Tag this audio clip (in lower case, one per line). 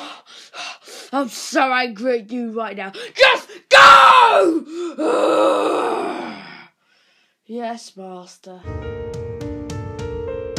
inside a small room
speech
music